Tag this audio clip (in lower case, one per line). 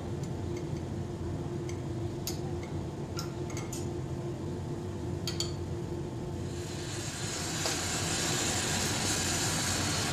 chink